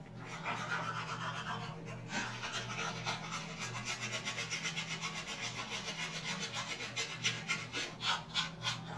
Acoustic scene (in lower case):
restroom